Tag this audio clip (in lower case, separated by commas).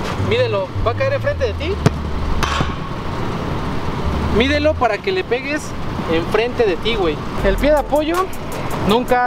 shot football